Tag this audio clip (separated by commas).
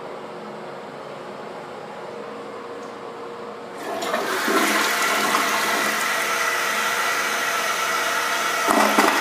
Toilet flush, Water